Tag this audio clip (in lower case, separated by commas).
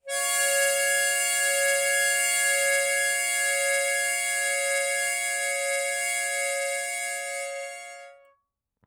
music, harmonica, musical instrument